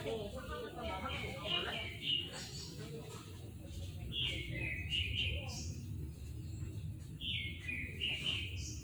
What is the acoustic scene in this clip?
park